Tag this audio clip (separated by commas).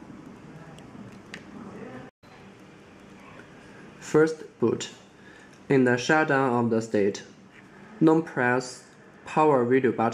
Speech